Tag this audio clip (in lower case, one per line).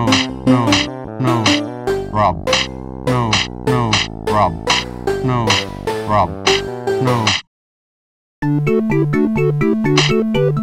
speech
music